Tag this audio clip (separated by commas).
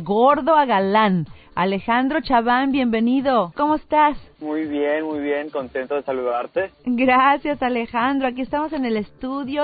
Music, Speech, Radio